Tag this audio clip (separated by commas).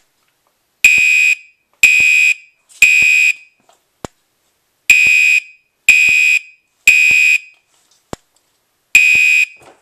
Fire alarm, smoke alarm